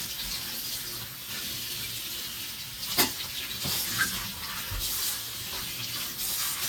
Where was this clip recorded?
in a kitchen